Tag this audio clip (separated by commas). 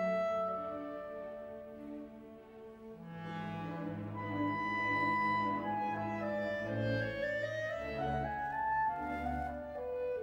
playing clarinet